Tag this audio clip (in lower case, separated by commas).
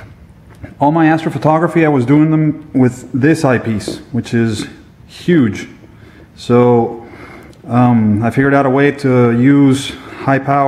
speech